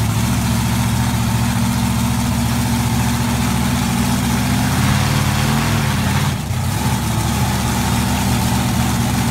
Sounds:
vehicle

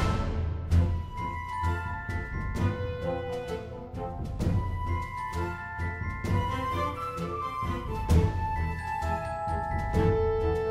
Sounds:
music

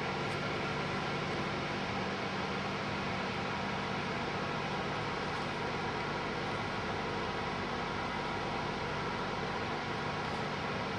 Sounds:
white noise

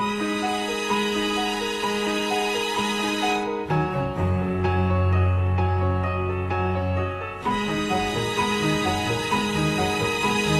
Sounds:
music
tender music

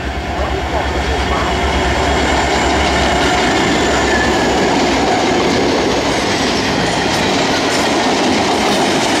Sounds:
train
rail transport
clickety-clack
railroad car

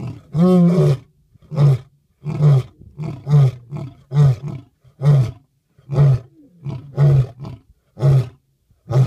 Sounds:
lions roaring

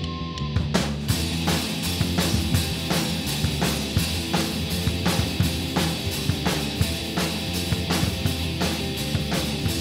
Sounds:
music

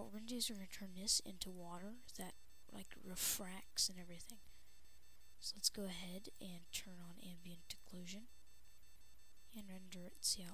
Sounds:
speech

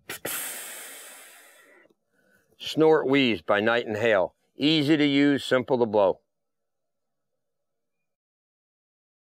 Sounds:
speech

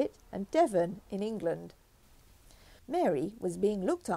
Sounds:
speech

